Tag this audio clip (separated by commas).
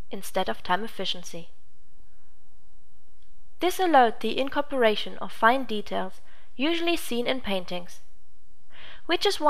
Speech